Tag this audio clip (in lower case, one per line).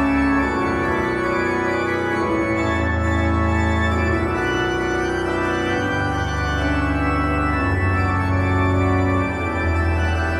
playing electronic organ